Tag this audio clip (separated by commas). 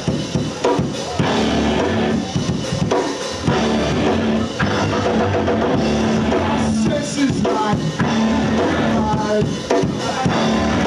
Percussion, Snare drum, Drum, Bass drum, Rimshot, Drum kit